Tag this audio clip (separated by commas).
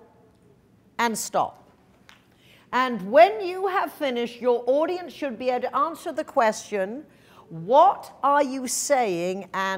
Female speech, Speech